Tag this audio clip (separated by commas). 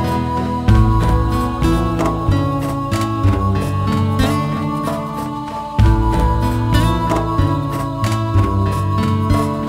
Music